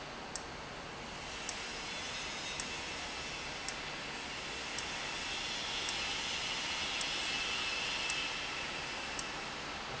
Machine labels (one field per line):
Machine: valve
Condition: abnormal